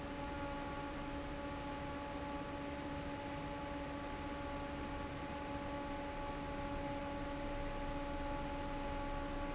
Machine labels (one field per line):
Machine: fan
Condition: normal